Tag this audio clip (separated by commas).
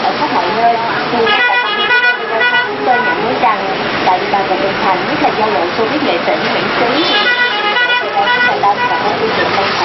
Speech